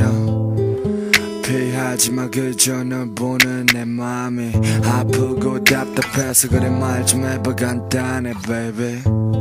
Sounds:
music

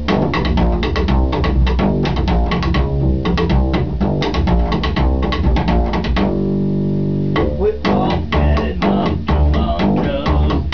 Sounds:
music

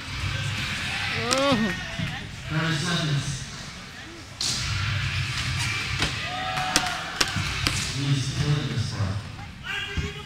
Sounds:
speech

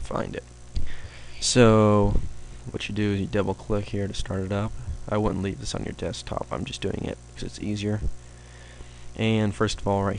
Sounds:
speech

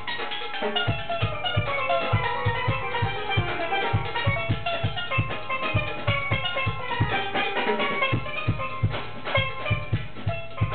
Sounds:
music
steelpan

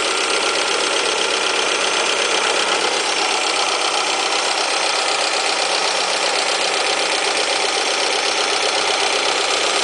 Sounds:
vehicle

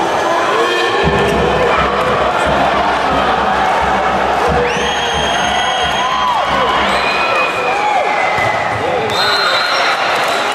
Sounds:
speech

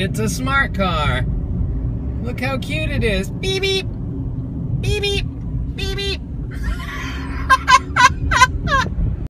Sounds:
car passing by

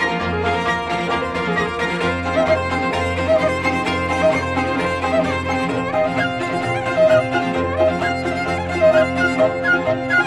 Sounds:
fiddle
music
musical instrument

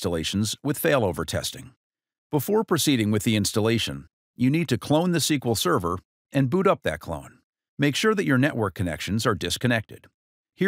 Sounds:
speech

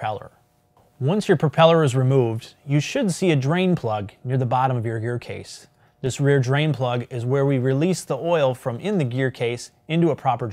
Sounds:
speech

